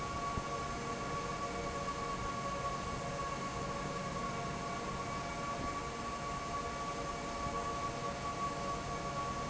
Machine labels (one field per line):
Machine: fan